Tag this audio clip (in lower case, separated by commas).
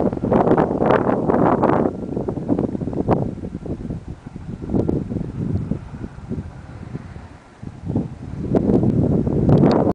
wind noise (microphone), wind, wind noise